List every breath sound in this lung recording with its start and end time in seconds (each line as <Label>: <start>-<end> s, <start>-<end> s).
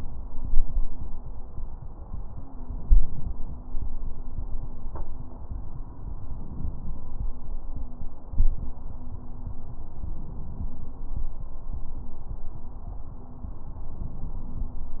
Inhalation: 2.61-3.72 s, 6.14-7.25 s, 9.87-10.98 s, 13.78-14.89 s